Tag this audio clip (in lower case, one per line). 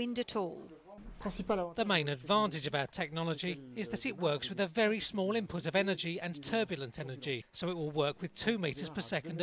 speech